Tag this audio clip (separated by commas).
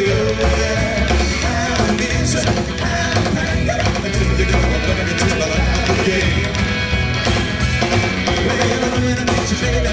Music, Ska, Country, Rock music